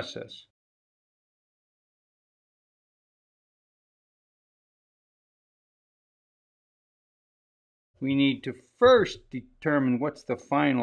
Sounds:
speech

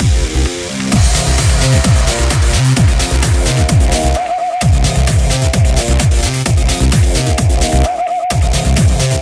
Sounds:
music

